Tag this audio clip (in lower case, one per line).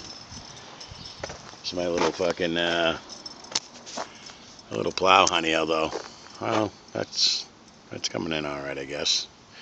speech